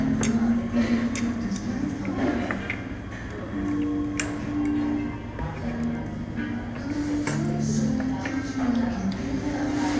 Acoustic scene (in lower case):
restaurant